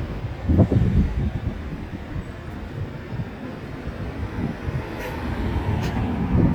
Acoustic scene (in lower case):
street